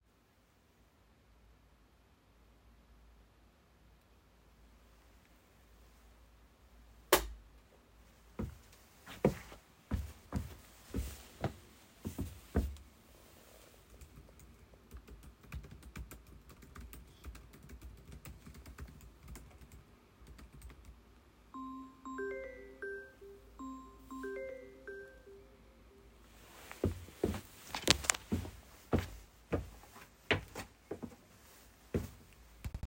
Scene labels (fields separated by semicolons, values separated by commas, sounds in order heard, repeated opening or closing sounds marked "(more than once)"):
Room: bedroom; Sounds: light switch, footsteps, keyboard typing, phone ringing